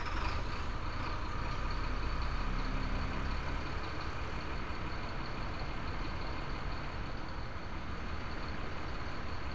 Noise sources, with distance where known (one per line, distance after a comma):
large-sounding engine, near